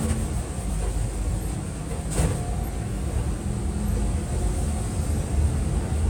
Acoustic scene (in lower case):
bus